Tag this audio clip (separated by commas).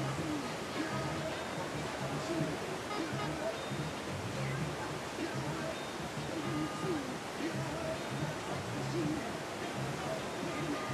Music, Vehicle, Water vehicle